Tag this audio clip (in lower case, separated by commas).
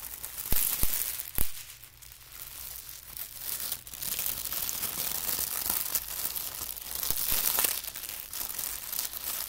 ripping paper